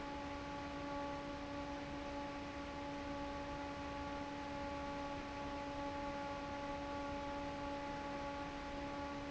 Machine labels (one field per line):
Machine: fan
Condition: normal